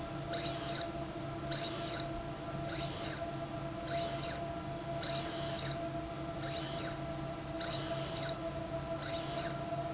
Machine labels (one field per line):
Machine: slide rail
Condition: abnormal